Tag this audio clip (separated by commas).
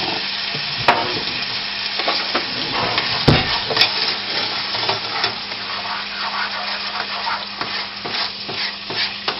Frying (food), Stir